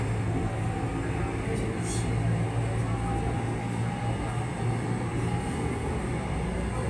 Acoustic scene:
subway train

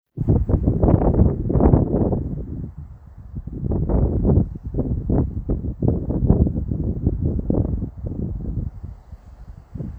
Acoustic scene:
residential area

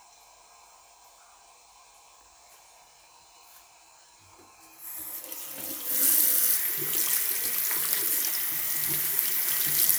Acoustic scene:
restroom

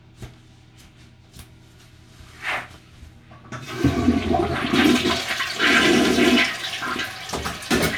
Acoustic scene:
restroom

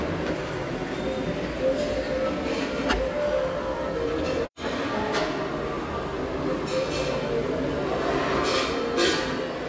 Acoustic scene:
restaurant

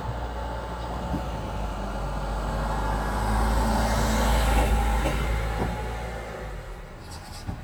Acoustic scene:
residential area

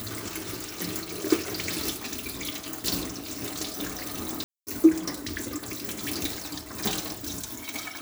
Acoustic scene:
kitchen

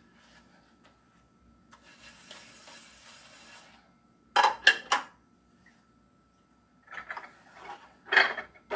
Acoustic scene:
kitchen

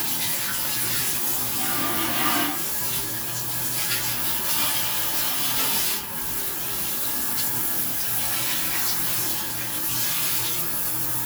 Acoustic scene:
restroom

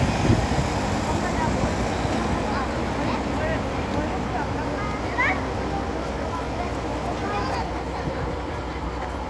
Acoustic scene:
street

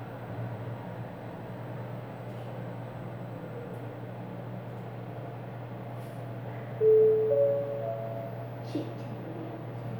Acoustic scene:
elevator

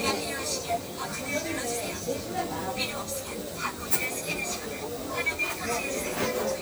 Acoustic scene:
crowded indoor space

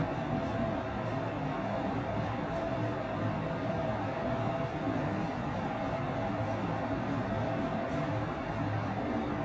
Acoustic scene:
elevator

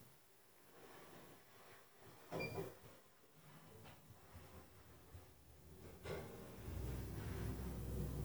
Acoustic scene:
elevator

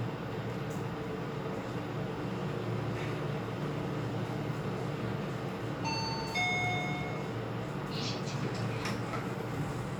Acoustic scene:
elevator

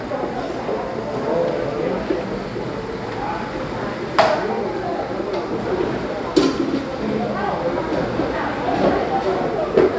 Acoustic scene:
cafe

